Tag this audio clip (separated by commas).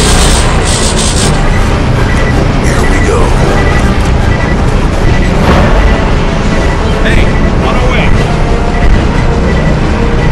Speech, Music